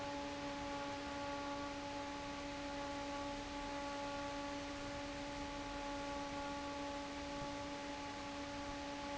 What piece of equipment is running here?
fan